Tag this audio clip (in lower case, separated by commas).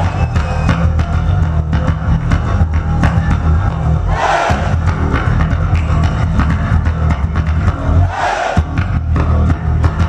plucked string instrument, guitar, music, musical instrument, strum